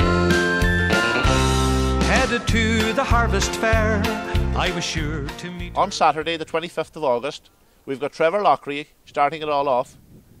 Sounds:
music, speech

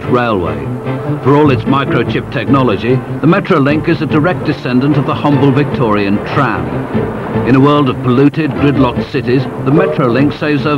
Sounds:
speech, music

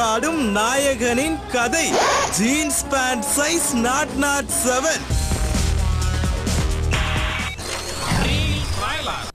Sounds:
music, speech

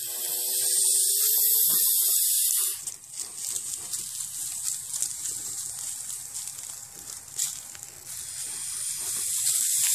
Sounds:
snake rattling

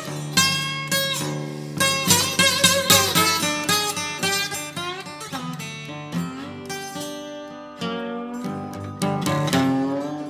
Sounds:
slide guitar

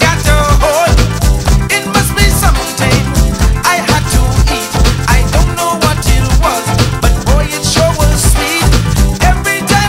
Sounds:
music

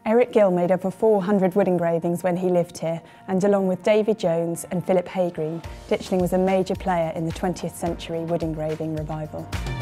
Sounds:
speech, music

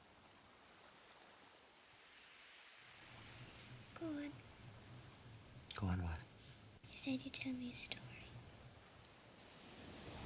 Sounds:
speech

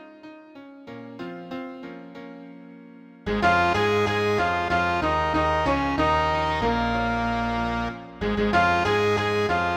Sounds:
musical instrument, music

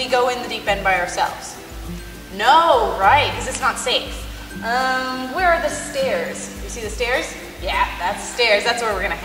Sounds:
speech, music

